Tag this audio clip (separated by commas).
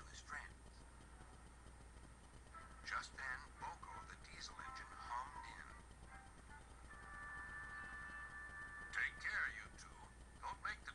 Music, Speech